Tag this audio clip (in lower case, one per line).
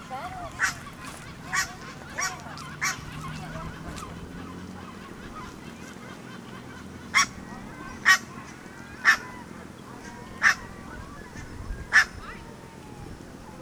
fowl
animal
livestock